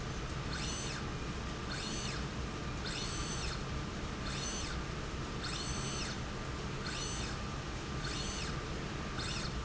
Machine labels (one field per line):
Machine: slide rail